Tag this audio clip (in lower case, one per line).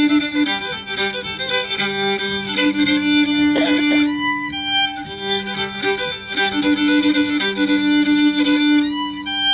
musical instrument
fiddle
music